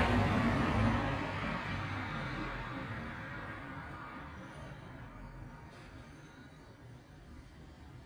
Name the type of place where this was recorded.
street